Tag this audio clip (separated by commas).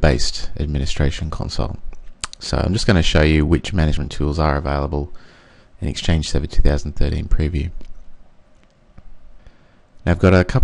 Speech